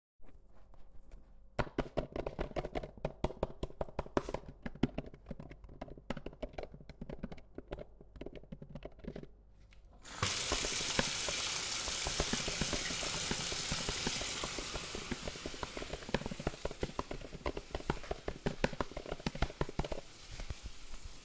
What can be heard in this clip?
keyboard typing, running water